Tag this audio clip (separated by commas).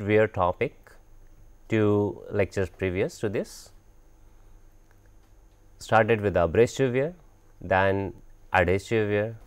Speech